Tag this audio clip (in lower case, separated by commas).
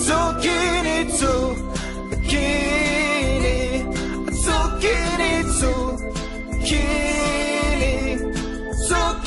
music